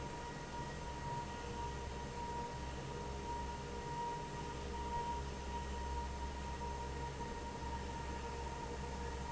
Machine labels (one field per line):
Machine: fan